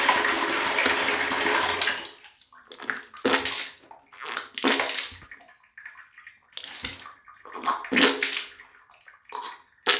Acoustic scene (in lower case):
restroom